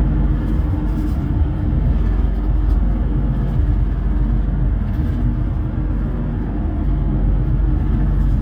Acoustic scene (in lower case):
bus